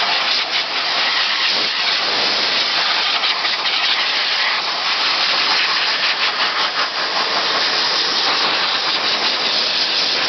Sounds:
Steam

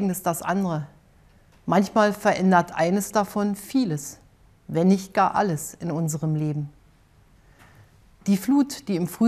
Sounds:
woman speaking, Speech

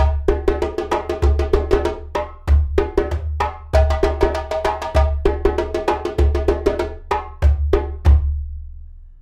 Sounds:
playing djembe

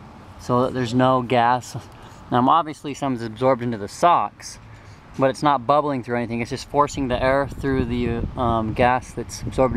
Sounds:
Speech

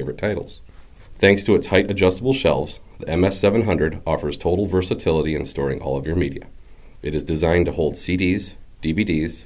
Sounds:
Speech

